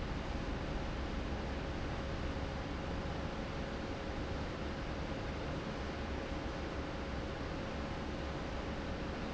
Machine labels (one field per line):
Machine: fan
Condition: abnormal